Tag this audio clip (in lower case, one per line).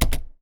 domestic sounds
typing